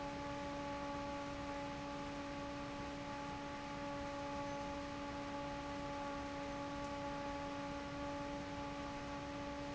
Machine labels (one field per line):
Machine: fan